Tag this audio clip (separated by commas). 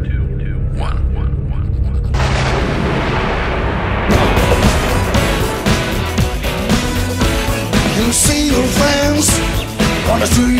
Pop music, Jazz, Jingle (music), Music